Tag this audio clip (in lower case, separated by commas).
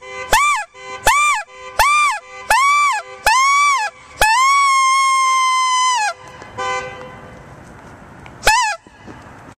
car horn, outside, urban or man-made, car